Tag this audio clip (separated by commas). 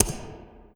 Typing, home sounds